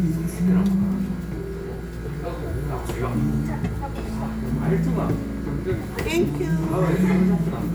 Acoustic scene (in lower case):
restaurant